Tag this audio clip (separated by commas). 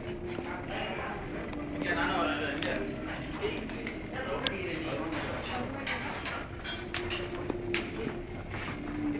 Music, Speech